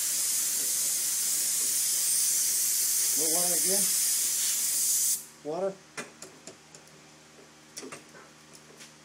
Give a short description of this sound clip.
Static and then a man mumbling